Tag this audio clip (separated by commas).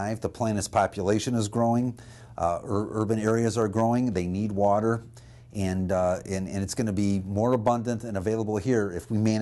Speech